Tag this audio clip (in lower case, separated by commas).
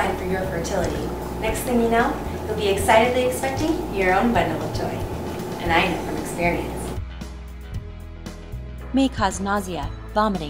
gurgling, music, speech